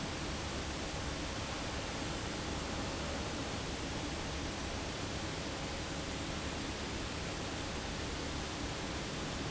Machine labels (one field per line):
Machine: fan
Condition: abnormal